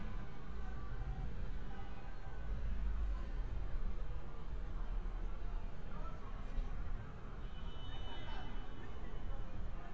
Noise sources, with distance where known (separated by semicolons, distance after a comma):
car horn, far; person or small group talking, far